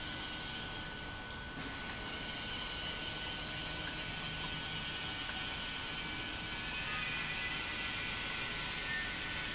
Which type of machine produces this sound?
pump